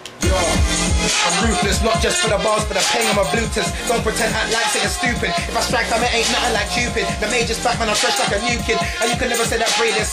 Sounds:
hip hop music
music

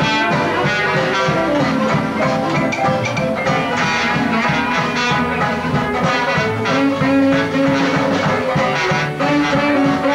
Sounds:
music

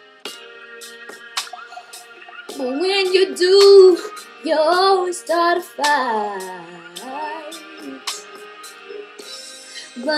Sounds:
female singing
music

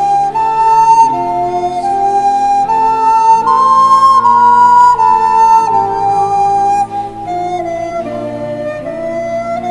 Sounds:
music

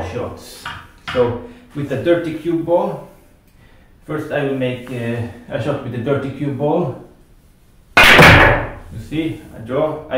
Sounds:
striking pool

